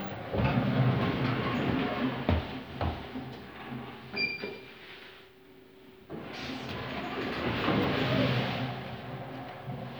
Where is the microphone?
in an elevator